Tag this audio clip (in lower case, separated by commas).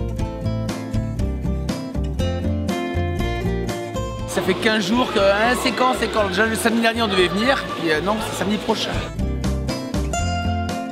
music, speech